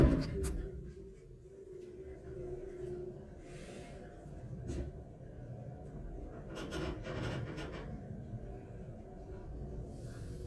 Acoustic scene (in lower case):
elevator